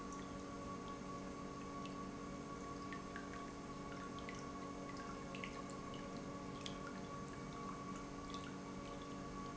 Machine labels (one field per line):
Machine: pump